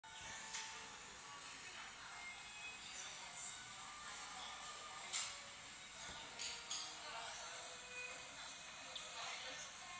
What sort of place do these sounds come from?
cafe